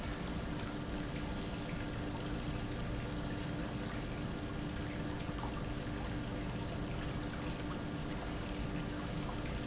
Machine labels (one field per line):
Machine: pump